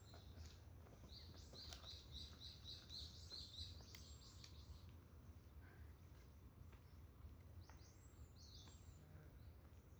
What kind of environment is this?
park